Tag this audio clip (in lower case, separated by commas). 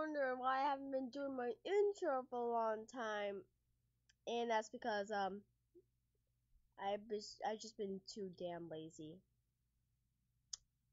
speech